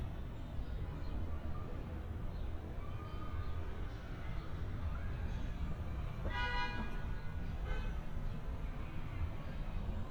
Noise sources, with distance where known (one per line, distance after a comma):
car horn, near
unidentified human voice